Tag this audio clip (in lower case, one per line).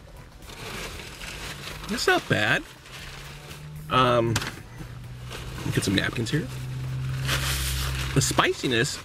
music
speech